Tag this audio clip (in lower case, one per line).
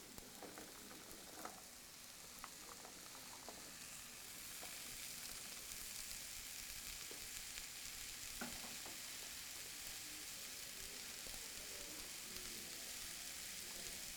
frying (food)
home sounds